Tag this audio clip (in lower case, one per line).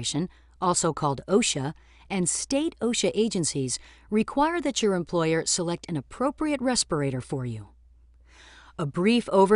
speech